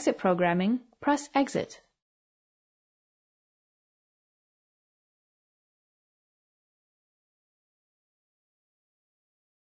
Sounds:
speech

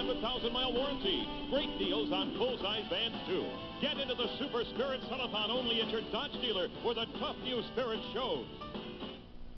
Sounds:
music
speech

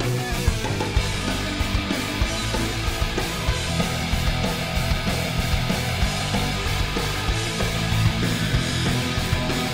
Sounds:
music
heavy metal
progressive rock
rock and roll

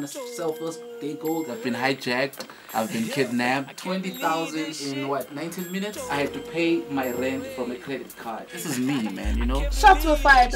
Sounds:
speech
music

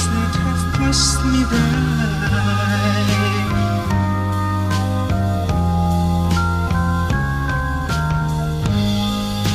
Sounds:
music

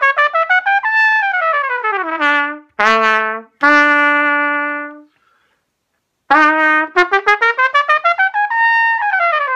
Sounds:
playing cornet

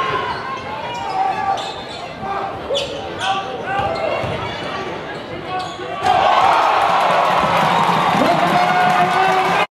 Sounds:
speech
music

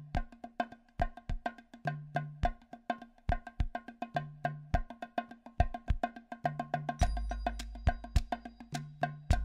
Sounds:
music
wood block

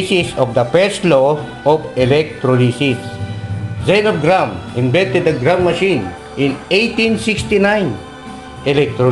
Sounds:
speech
music

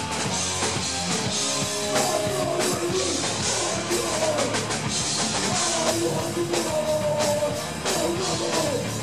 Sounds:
music
singing
rock music

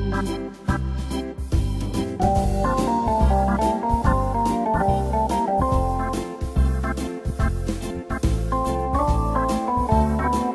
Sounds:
music

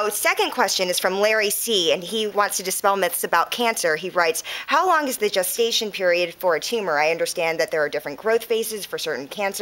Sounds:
speech

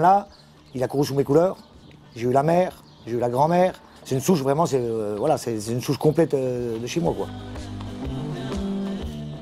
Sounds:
speech
chop
music

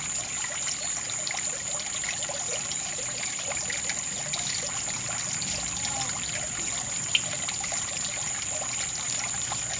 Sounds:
frog croaking

